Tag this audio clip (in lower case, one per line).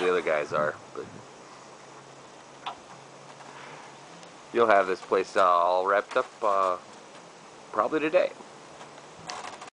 speech